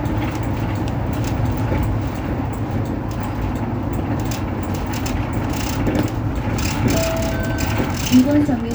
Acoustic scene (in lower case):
bus